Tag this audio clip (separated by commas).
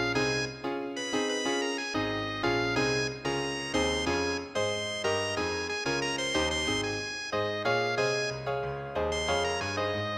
Music